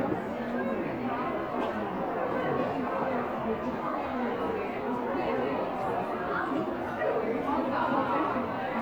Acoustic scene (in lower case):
crowded indoor space